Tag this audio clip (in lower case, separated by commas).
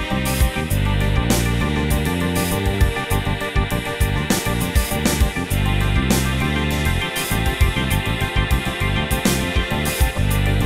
music